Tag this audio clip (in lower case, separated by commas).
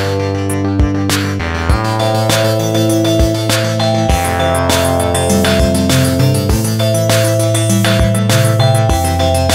music